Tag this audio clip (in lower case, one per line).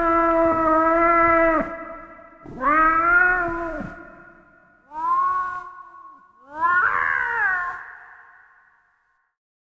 animal
caterwaul
meow
cat meowing